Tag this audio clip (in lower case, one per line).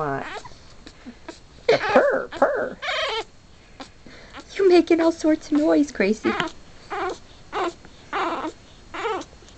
dog
animal
pets
speech